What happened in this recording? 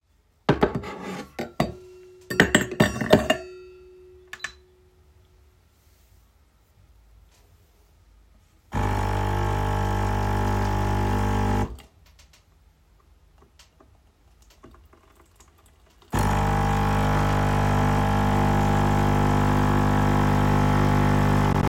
I put my heating cup under the coffee machine, put ice cubes in it, and started the coffee machine.